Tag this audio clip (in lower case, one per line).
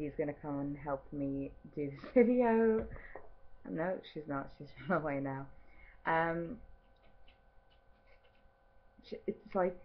speech